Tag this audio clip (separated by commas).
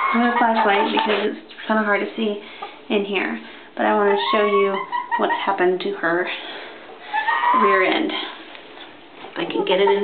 Speech